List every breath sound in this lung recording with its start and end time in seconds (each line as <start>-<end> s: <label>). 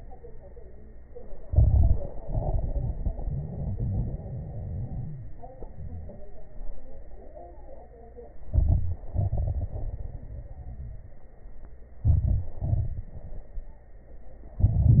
1.42-2.18 s: crackles
1.45-2.23 s: inhalation
2.23-5.33 s: exhalation
2.23-5.33 s: crackles
8.44-9.07 s: inhalation
8.44-9.07 s: crackles
9.11-11.26 s: exhalation
9.11-11.26 s: crackles
12.01-12.59 s: inhalation
12.01-12.59 s: crackles
12.63-13.88 s: exhalation
12.63-13.88 s: crackles
14.58-15.00 s: inhalation
14.58-15.00 s: crackles